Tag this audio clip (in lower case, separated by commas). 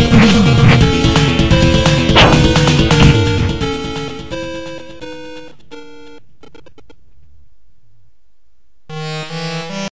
music